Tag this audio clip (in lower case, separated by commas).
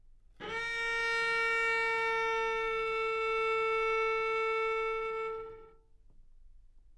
musical instrument, music, bowed string instrument